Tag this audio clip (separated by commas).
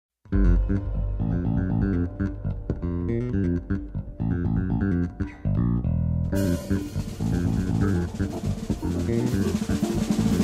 Snare drum, Bass drum, Percussion, Drum roll, Drum